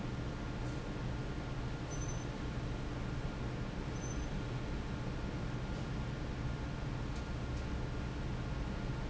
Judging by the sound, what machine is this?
fan